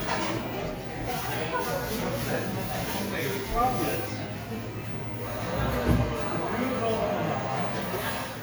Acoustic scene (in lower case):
cafe